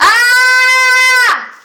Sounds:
screaming, human voice

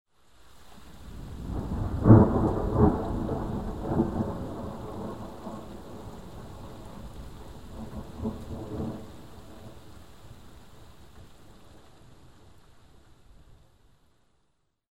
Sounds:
thunderstorm, thunder

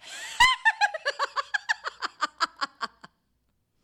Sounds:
human voice, laughter

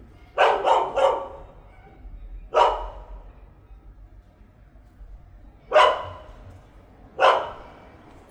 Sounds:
domestic animals, bark, dog, animal

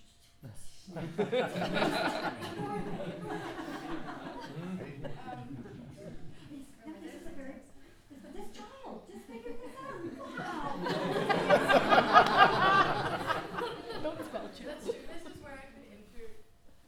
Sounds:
laughter, human voice

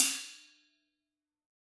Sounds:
musical instrument, music, cymbal, percussion, hi-hat

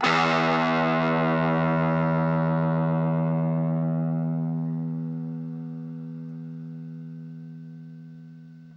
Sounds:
guitar, plucked string instrument, musical instrument, music

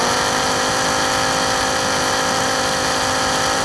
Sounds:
tools

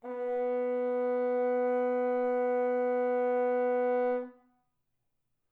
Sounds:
musical instrument, music, brass instrument

